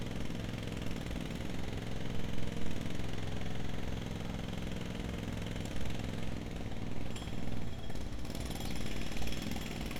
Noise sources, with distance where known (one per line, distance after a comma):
jackhammer